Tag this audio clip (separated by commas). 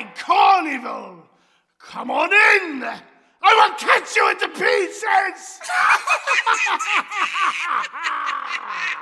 Speech